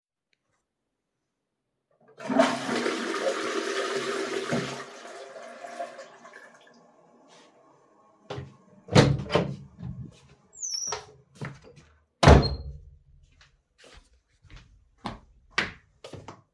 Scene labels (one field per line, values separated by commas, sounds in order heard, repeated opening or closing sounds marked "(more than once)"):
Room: lavatory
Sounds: toilet flushing, door, footsteps